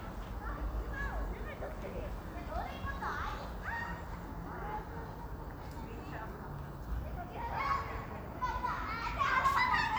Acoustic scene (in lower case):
residential area